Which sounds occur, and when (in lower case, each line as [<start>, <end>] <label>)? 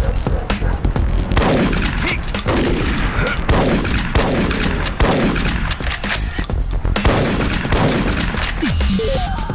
[0.00, 9.54] music
[1.94, 2.19] man speaking
[6.93, 9.54] video game sound
[6.96, 8.47] gunshot